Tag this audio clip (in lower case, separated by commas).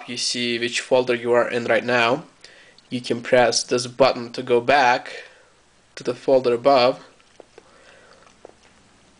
speech, inside a small room